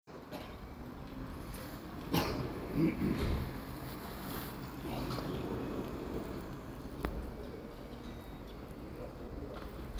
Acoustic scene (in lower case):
residential area